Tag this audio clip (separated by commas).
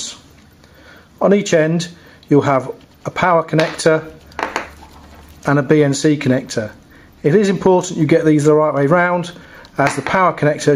Speech, inside a small room